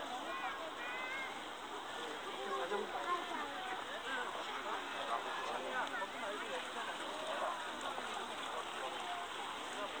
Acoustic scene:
park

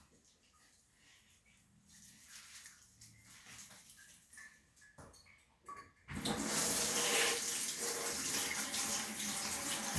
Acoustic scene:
restroom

